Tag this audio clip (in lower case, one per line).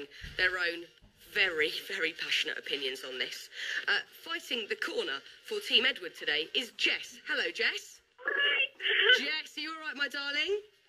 speech